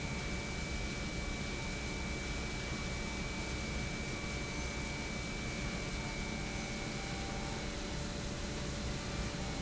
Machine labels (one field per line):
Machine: pump